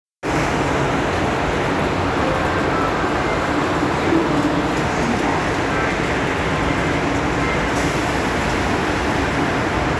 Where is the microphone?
in a subway station